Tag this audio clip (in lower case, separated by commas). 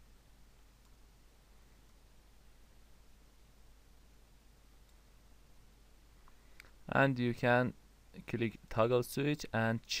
silence, speech